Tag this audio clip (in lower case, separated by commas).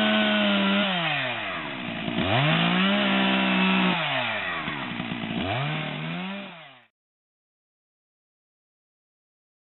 chainsawing trees